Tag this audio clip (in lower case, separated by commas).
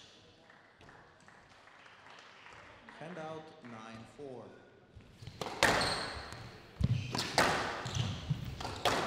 playing squash